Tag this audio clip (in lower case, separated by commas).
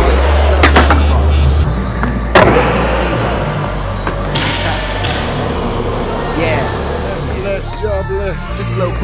skateboard, speech, music